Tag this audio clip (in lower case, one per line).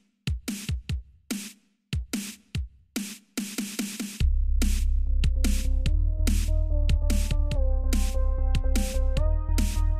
dubstep
music
electronic music